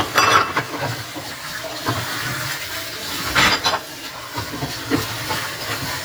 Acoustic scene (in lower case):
kitchen